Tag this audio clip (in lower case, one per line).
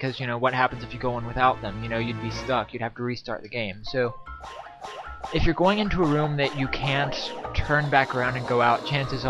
music
speech